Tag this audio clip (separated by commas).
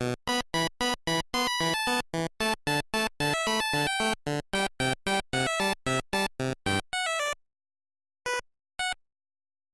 Music